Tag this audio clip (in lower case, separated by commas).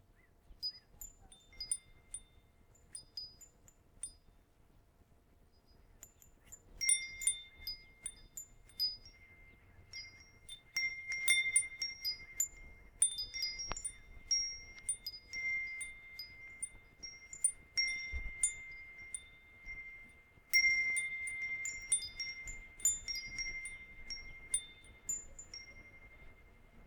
wind chime, bell, chime